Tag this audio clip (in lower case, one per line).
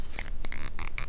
tools
squeak